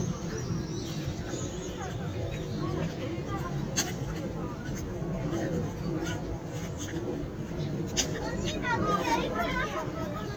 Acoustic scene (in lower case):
park